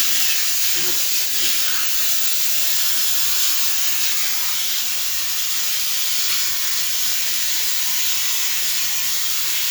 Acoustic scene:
restroom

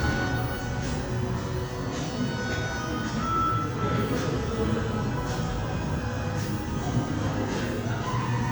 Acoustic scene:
cafe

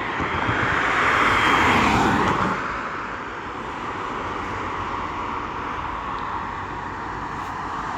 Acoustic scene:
street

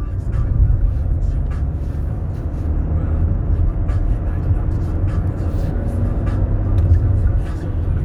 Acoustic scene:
car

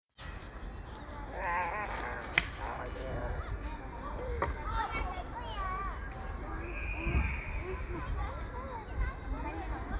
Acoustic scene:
park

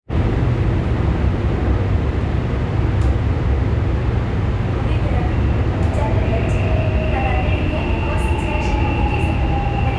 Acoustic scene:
subway train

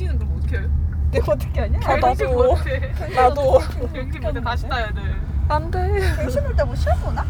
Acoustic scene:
car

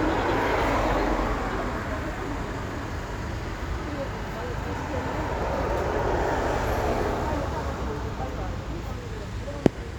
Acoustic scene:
residential area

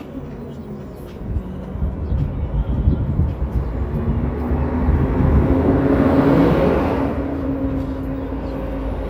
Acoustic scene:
street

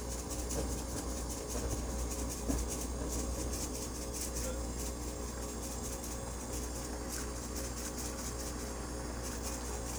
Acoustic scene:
kitchen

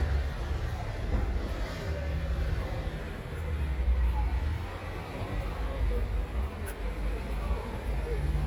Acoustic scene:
residential area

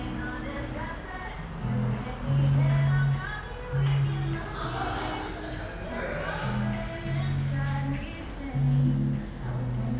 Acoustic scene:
cafe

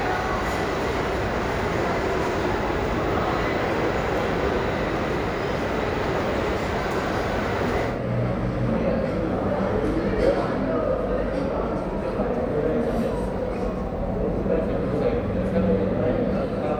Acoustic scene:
crowded indoor space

